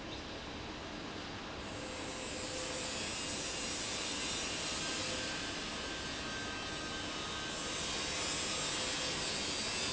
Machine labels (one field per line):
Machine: fan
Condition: abnormal